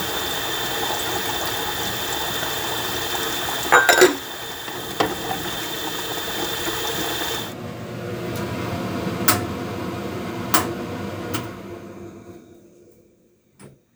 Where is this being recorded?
in a kitchen